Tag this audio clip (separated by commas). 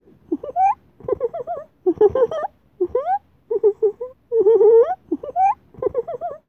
Laughter, Human voice